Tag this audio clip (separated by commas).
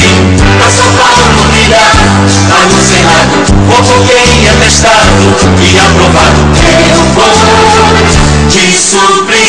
Jingle (music), Music